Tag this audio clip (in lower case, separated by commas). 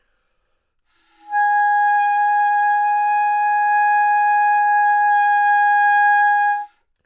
musical instrument, music, woodwind instrument